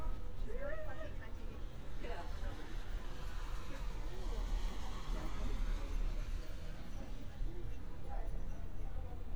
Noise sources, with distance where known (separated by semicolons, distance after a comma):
person or small group talking, near